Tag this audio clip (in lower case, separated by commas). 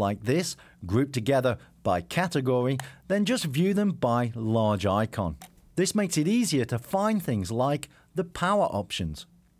speech